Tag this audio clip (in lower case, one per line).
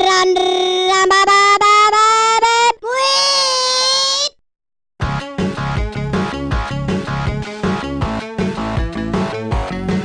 music